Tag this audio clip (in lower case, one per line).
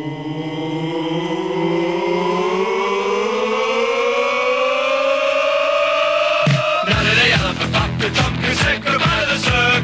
singing
music